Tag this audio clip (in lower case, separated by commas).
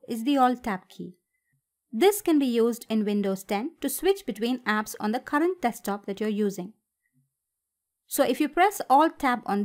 speech